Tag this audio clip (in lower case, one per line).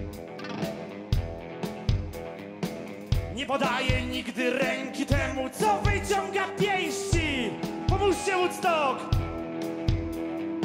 music